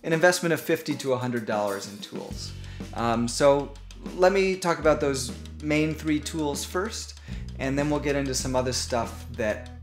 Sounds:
music
speech

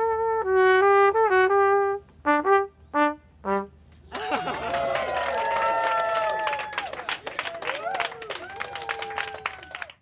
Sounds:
musical instrument
speech
trumpet
music

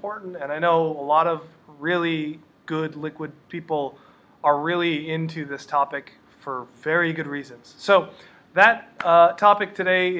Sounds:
speech

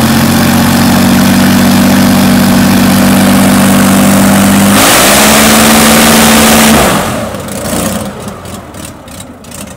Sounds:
heavy engine (low frequency)
vehicle

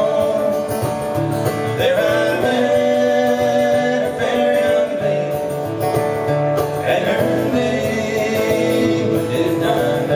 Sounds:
blues
music

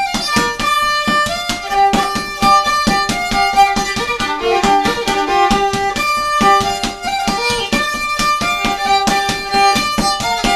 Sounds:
fiddle
musical instrument
music

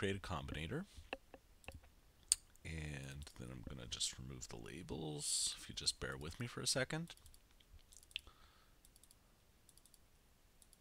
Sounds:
speech

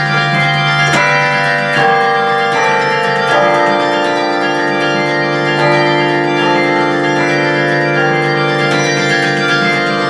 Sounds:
music

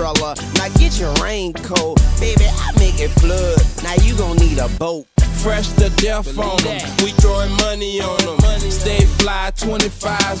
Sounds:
music

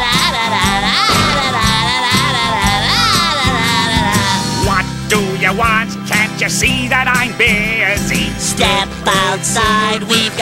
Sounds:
jingle (music)

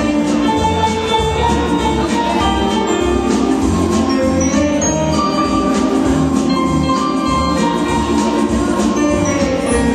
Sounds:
music

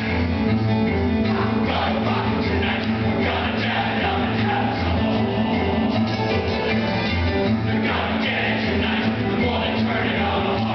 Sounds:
music
inside a large room or hall

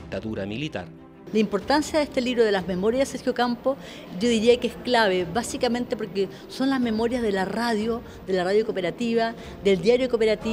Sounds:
music
speech

